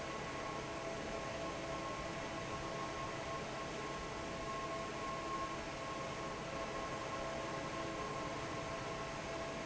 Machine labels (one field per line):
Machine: fan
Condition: normal